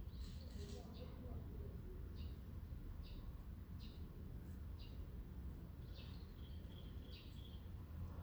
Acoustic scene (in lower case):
residential area